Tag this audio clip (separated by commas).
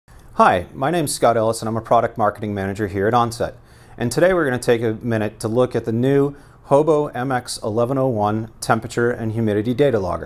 Speech